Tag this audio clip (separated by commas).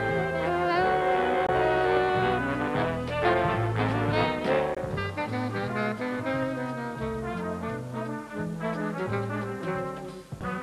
Snare drum, Rimshot, Trombone, Saxophone, Percussion, Drum kit, Brass instrument, Drum, Trumpet